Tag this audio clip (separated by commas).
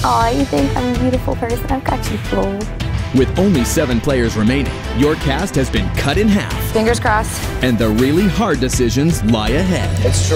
Speech, Music